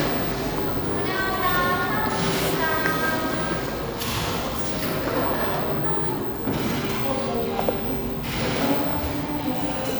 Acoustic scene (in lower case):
cafe